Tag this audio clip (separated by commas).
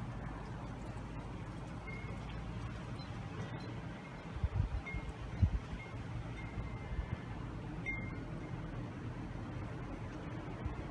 wind chime